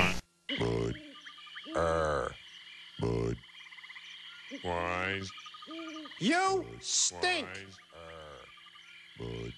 Frogs croaking followed by male yelling